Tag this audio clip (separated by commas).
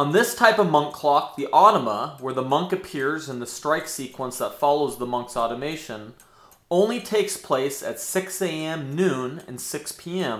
Speech, Tick-tock